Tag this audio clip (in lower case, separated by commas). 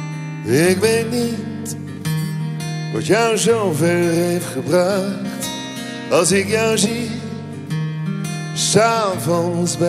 music